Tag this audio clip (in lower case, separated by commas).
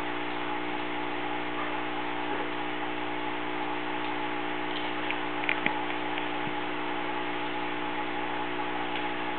speech